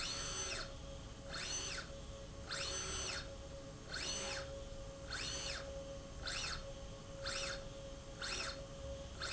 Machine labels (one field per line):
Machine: slide rail